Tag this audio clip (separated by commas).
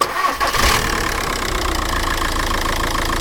Engine, Vehicle, Engine starting, Motor vehicle (road), Idling